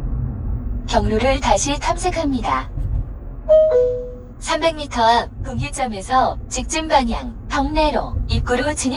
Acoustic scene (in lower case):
car